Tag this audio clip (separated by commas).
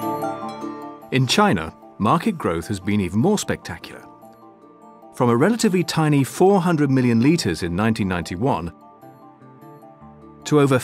Music, Speech